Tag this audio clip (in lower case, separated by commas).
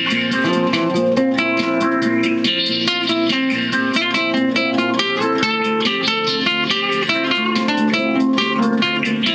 acoustic guitar, musical instrument, inside a small room, music, guitar, plucked string instrument